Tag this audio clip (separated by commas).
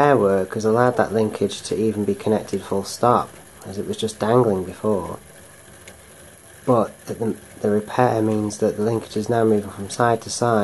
Speech, inside a small room